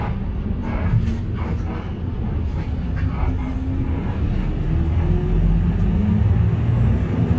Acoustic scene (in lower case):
bus